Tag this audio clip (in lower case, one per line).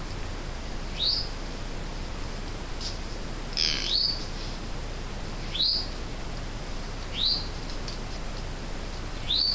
chirp
outside, rural or natural
bird
animal